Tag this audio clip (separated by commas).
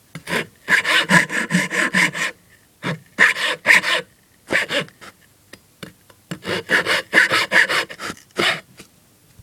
Tools, Sawing